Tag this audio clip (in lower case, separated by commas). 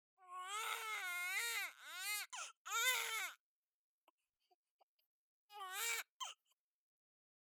crying, human voice